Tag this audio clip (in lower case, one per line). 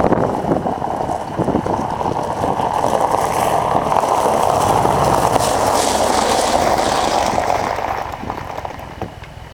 car
vehicle